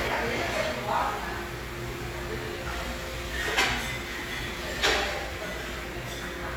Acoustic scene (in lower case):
restaurant